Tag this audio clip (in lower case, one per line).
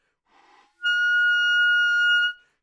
wind instrument
music
musical instrument